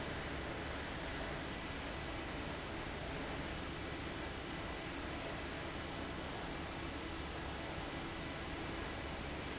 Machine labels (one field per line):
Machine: fan